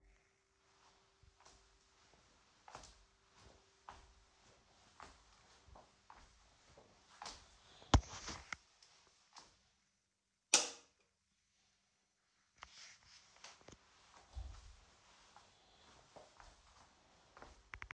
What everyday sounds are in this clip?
footsteps, light switch